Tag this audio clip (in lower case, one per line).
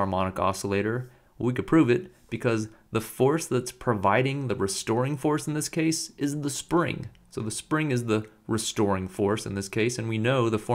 speech